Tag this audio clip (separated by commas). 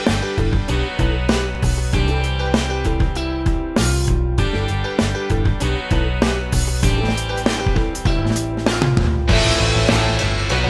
Music